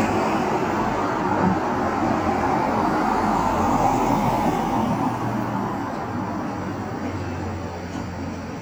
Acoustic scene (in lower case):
street